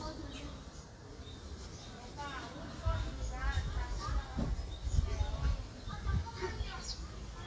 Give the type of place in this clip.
park